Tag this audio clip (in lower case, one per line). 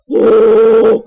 human voice